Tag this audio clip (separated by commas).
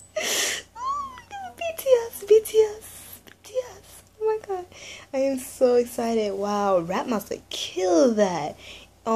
inside a small room, Speech